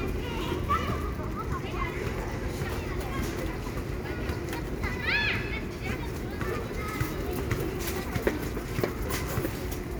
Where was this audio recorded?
in a residential area